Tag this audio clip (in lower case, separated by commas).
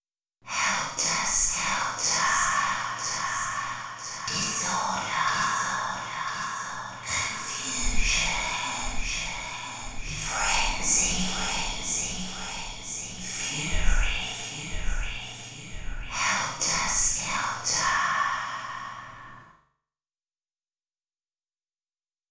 whispering, human voice